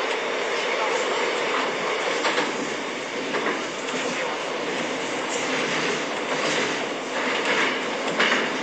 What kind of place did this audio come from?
subway train